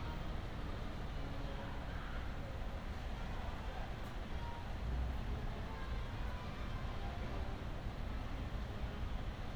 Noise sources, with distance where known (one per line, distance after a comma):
music from an unclear source, far
unidentified human voice, far